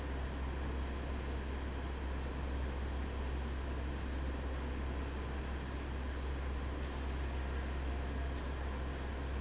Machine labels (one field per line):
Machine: fan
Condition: abnormal